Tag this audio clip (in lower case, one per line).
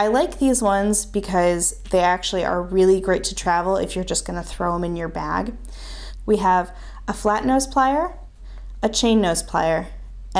speech